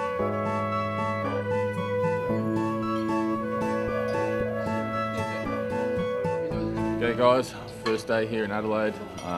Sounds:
speech
glass
music

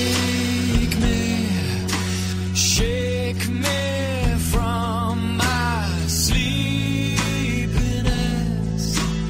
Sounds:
music

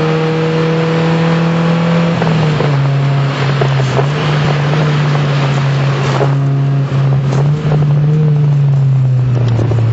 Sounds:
vehicle
motor vehicle (road)
car

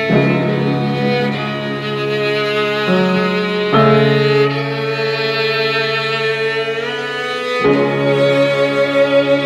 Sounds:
string section

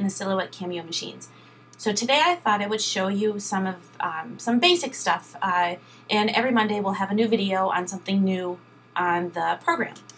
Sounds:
speech

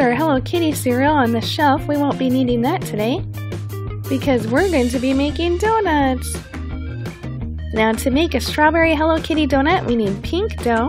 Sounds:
music
speech

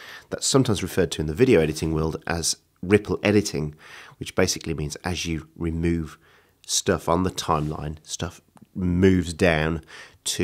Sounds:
speech

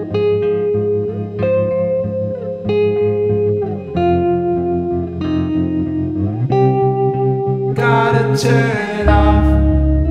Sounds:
music

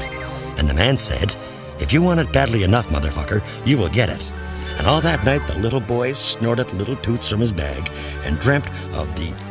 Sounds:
speech
music

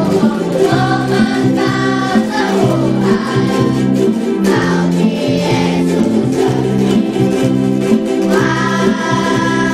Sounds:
music

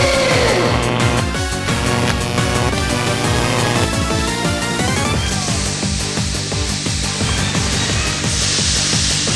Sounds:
music

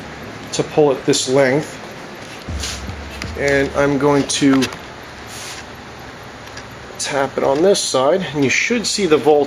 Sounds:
speech
inside a large room or hall

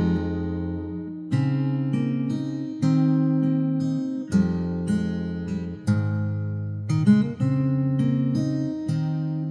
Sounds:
plucked string instrument
musical instrument
strum
guitar
playing acoustic guitar
music
acoustic guitar

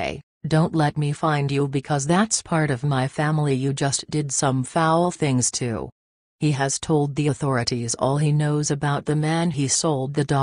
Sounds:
speech

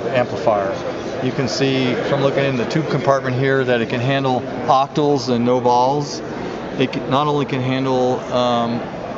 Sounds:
speech

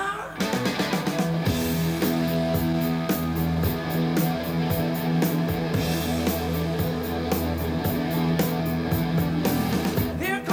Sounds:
rock and roll
music

